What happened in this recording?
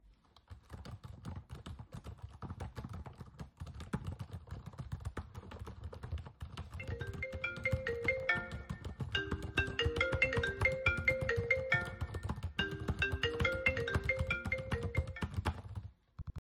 My phone rang while I was doing homework. I waited for it to ring a bit before I picked up